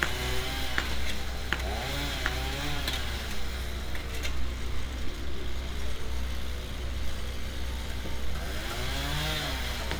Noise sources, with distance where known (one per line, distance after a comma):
small or medium rotating saw, near